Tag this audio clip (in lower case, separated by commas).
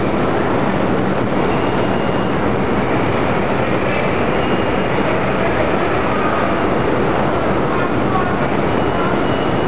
rail transport, underground, railroad car, train